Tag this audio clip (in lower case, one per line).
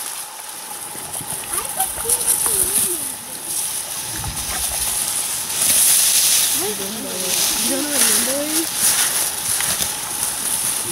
speech